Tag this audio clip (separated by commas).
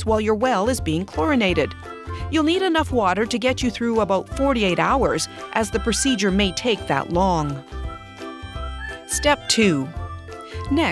Music, Speech